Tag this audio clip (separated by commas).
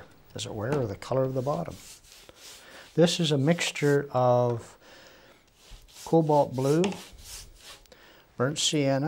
Speech